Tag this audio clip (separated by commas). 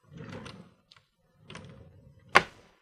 home sounds, Drawer open or close